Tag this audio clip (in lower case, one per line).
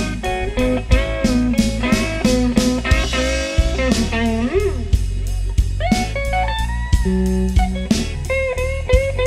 music
blues
electric guitar
plucked string instrument
musical instrument
guitar